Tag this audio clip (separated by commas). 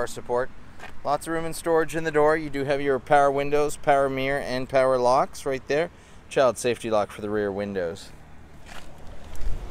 Speech